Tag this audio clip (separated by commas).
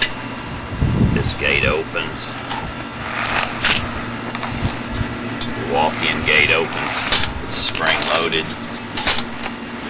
outside, urban or man-made, Speech